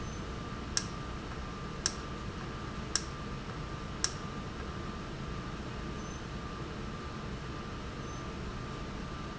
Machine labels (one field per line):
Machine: valve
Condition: normal